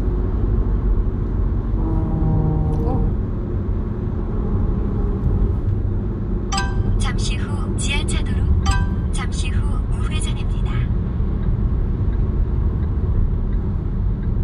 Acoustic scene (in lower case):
car